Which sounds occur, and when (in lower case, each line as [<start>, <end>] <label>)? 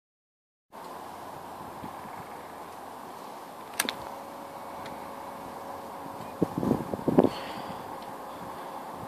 [0.67, 9.05] motor vehicle (road)
[0.69, 9.05] wind
[0.81, 0.86] tick
[1.72, 2.25] wind noise (microphone)
[3.78, 3.90] tick
[4.82, 4.89] tick
[6.17, 6.29] generic impact sounds
[6.31, 7.26] wind noise (microphone)
[7.27, 7.89] breathing
[7.97, 8.02] tick
[8.27, 8.89] breathing